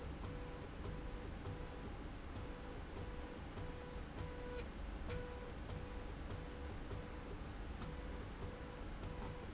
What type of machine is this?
slide rail